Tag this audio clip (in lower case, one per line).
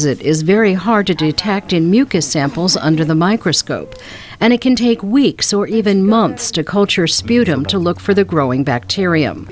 speech